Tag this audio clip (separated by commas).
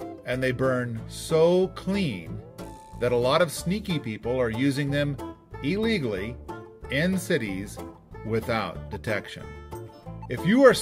Music, Speech